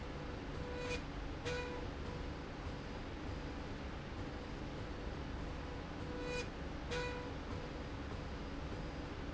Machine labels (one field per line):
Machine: slide rail